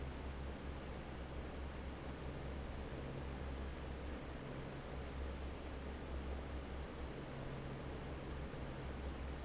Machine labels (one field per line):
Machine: fan